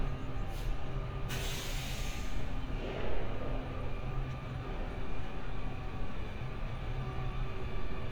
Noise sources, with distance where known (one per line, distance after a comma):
large-sounding engine